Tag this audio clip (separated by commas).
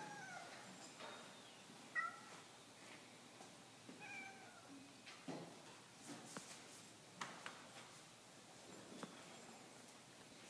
Animal